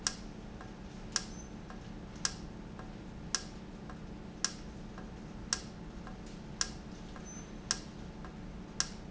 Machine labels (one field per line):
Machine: valve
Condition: normal